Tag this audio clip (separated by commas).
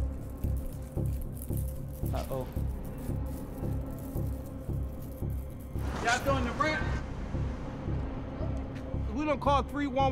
Speech, Music